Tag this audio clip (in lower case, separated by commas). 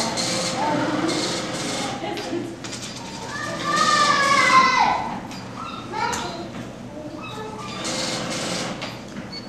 speech